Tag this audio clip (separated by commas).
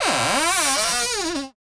Domestic sounds, Cupboard open or close